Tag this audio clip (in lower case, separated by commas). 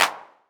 hands, clapping